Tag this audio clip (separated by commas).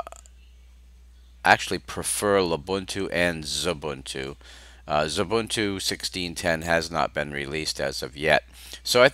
Speech